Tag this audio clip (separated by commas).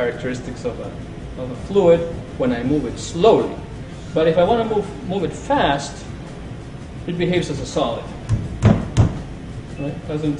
Speech